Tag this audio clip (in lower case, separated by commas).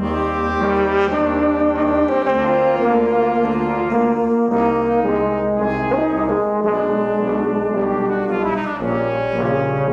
brass instrument, trombone, orchestra, trumpet